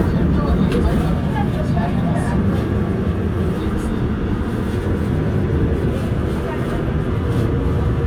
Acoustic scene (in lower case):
subway train